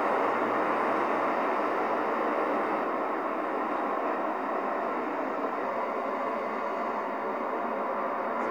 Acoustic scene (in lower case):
street